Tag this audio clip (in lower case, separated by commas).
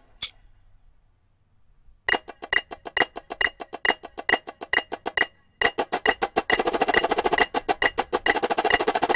drum, music, musical instrument, percussion